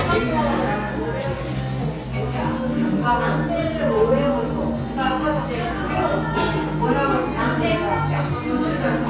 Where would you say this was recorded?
in a cafe